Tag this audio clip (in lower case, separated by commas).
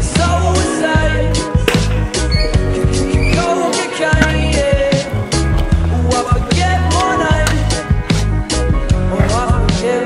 skateboard